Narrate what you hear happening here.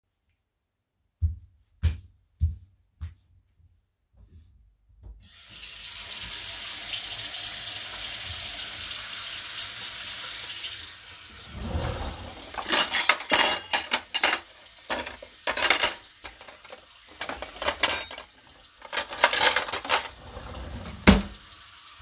I walked to the kitchen sink and turned on the tap. While the water was running, I placed some cutlery around.